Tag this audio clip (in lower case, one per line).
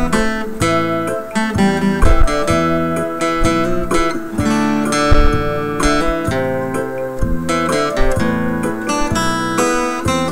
music